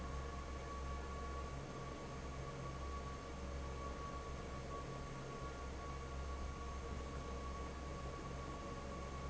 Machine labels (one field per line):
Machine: fan